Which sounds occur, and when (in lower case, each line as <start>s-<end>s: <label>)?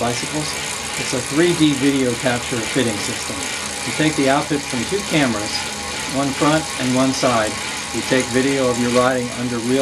0.0s-0.5s: man speaking
0.0s-9.8s: bicycle
0.9s-3.5s: man speaking
3.8s-5.6s: man speaking
6.0s-7.5s: man speaking
7.8s-9.8s: man speaking